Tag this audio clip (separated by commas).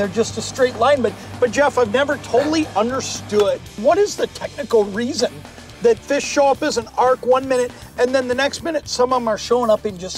Speech